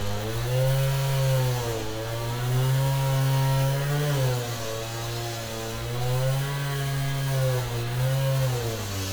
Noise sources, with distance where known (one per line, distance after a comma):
unidentified powered saw, near